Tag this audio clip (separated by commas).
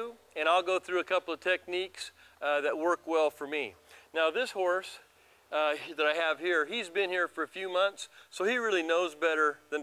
Speech